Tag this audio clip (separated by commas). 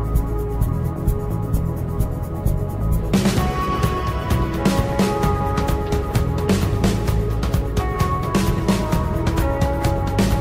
Background music, Music